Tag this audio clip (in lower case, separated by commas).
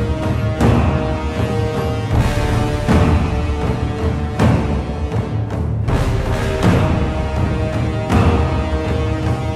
music